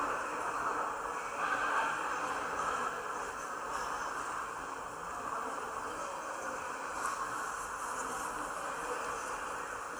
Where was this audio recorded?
in a subway station